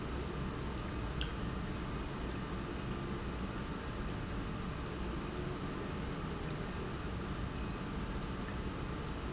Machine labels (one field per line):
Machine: pump